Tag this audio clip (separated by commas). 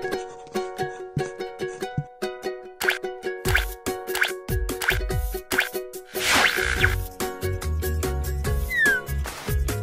Music